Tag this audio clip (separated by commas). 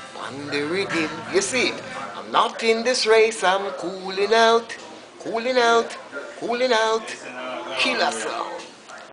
Music, Speech